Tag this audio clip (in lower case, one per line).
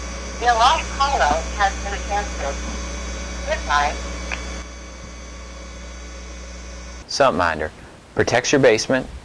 hum